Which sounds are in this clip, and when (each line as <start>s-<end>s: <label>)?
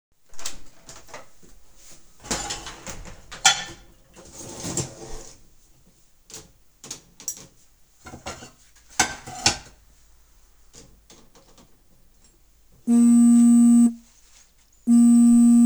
3.2s-3.8s: cutlery and dishes
8.0s-8.5s: cutlery and dishes
8.9s-9.7s: cutlery and dishes
12.9s-14.0s: phone ringing
14.9s-15.7s: phone ringing